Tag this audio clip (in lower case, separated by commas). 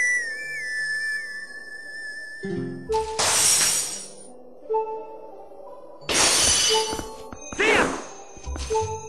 music